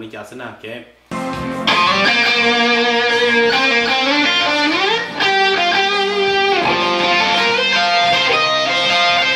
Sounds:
electric guitar
plucked string instrument
music
guitar
speech
strum
musical instrument

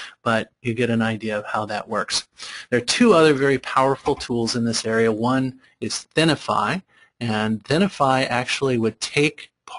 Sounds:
speech

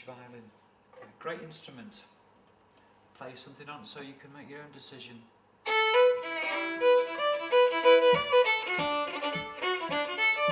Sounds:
speech
violin
music
musical instrument

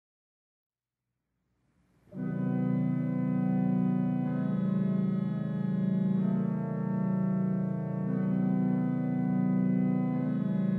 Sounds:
organ
music
musical instrument
keyboard (musical)

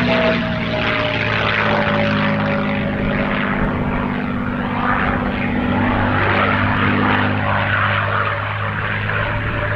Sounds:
airplane flyby

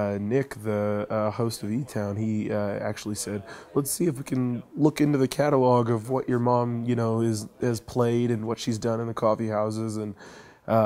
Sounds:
speech

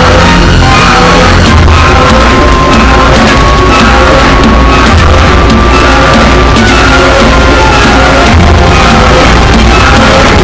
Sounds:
music

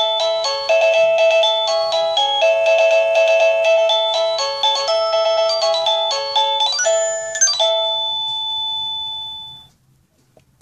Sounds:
music

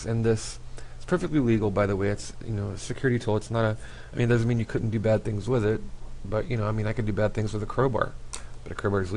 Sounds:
speech

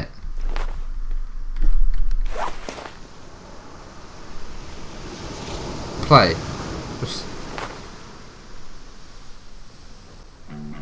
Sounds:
speech

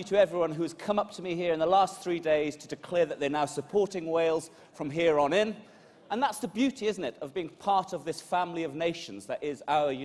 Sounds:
speech
monologue
male speech

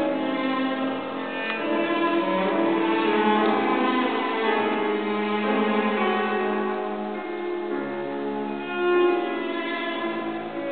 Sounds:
violin
music
musical instrument

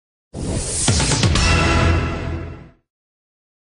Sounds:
music

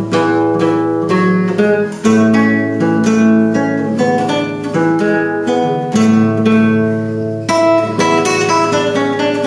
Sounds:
musical instrument
plucked string instrument
guitar
music

